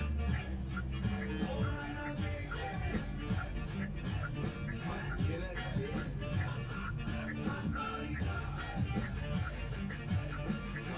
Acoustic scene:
car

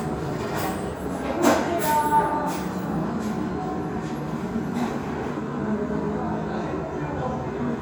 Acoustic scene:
restaurant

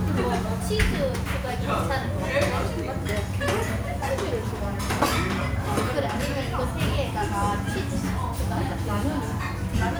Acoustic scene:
restaurant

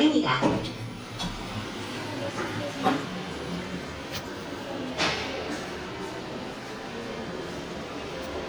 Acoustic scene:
elevator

